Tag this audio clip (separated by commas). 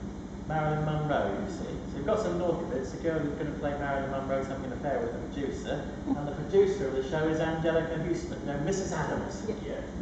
Speech